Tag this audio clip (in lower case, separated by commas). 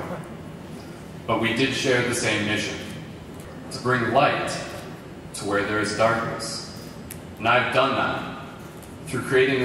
man speaking, speech, narration